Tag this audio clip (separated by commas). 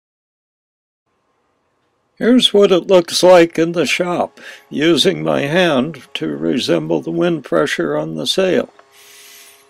Speech